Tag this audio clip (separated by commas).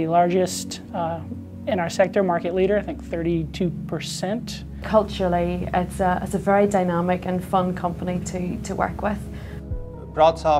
Speech, inside a small room, Music